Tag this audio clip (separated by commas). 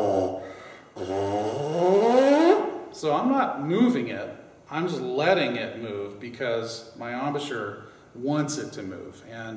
Speech